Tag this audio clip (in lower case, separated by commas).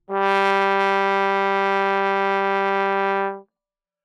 musical instrument, music, brass instrument